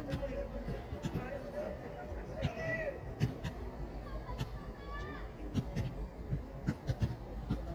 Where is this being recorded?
in a park